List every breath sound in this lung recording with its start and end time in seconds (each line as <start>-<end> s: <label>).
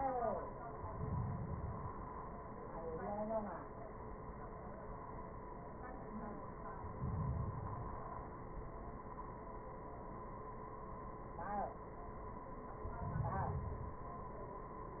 0.77-2.27 s: inhalation
6.66-8.38 s: inhalation
12.60-14.21 s: inhalation